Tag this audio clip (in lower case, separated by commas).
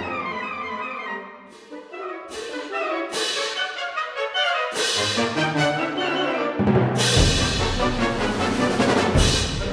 music